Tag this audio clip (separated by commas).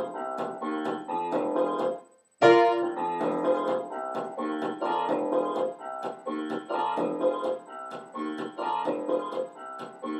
Techno, Electronic music, Music